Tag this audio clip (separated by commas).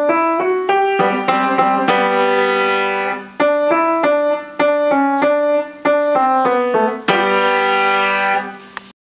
Music